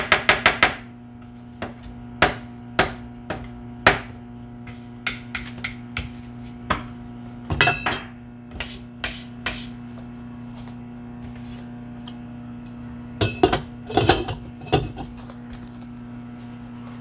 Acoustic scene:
kitchen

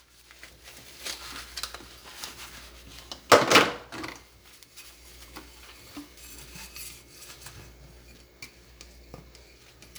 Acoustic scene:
kitchen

